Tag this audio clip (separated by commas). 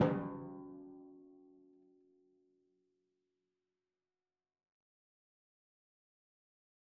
Music, Musical instrument, Drum, Percussion